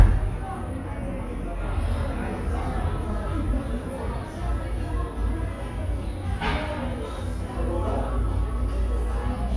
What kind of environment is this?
cafe